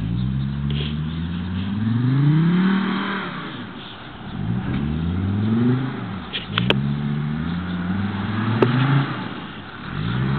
A car revving its engine then driving away